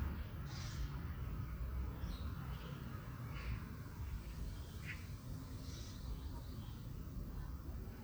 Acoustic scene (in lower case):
residential area